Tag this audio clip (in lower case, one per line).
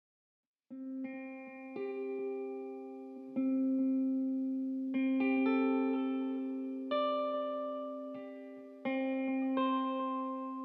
music
inside a small room